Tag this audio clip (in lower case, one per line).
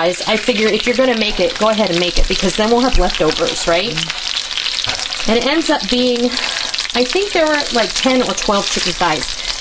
sizzle